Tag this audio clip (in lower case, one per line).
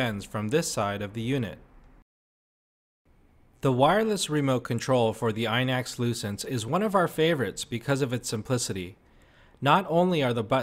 speech